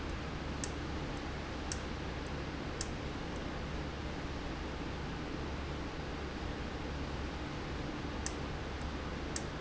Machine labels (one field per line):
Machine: valve